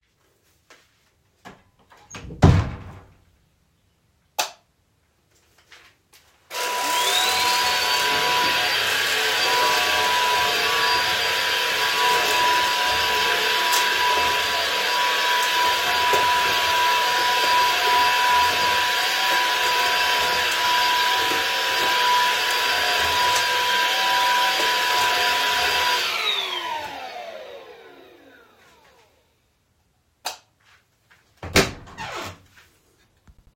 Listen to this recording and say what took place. I opened the kitchen door and turned on the light and startet cleaning with the vacuum cleaner. Afterwards I turned off the light and closed the kitchen door.